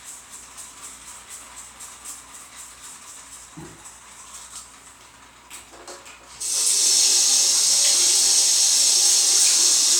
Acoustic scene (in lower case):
restroom